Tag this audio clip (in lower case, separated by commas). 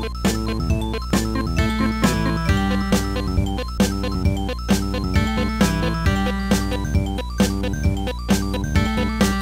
music, soundtrack music